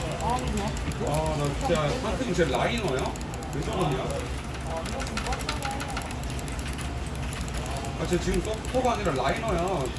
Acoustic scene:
crowded indoor space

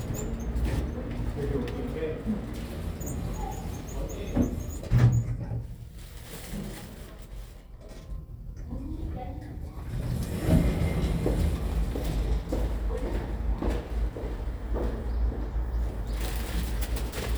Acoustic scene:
elevator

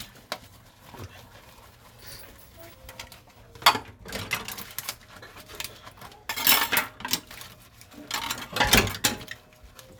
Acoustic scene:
kitchen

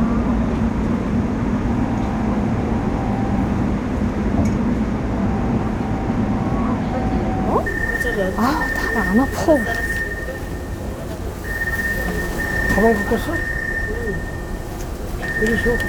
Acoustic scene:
subway train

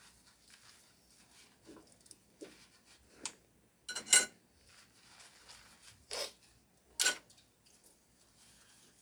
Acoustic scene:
kitchen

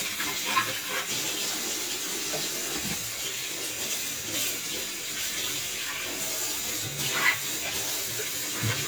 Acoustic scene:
kitchen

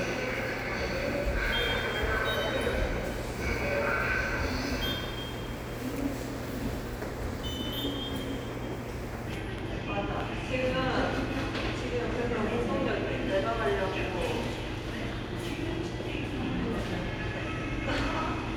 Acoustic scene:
subway station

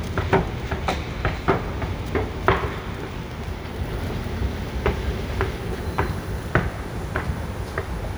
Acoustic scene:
subway station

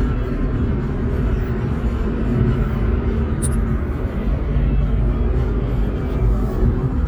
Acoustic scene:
car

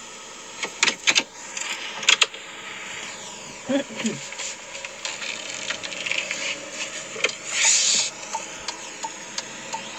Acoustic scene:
car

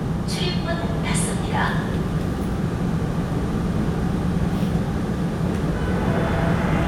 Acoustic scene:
subway train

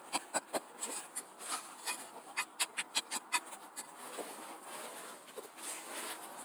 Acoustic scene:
street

